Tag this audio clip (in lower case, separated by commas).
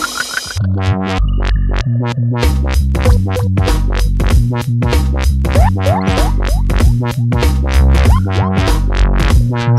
music